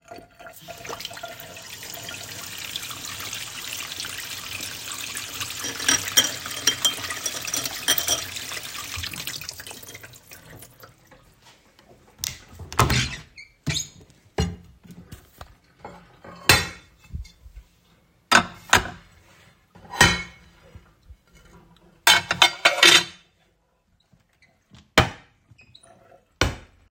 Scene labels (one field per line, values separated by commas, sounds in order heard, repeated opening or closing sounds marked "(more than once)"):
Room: kitchen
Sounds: running water, cutlery and dishes, wardrobe or drawer (more than once)